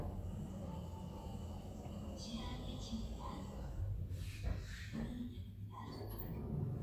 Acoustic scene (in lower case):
elevator